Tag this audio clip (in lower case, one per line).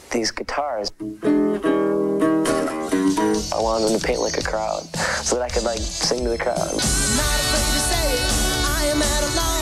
speech
music